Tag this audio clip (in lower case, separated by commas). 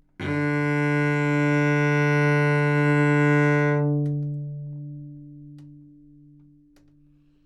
bowed string instrument, music, musical instrument